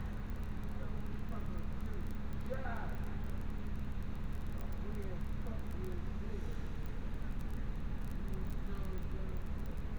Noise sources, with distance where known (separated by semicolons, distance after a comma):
person or small group talking, far